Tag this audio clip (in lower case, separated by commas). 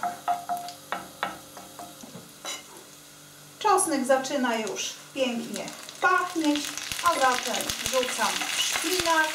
stir, sizzle